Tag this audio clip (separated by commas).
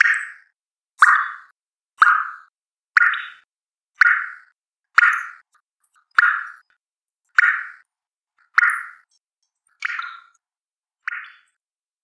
Liquid, Drip